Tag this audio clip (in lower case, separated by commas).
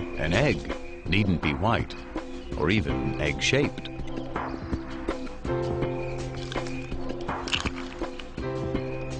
music, speech